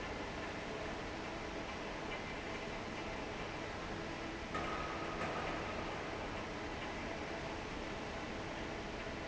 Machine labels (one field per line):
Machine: fan